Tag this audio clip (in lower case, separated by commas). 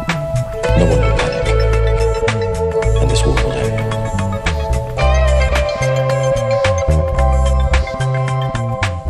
speech, music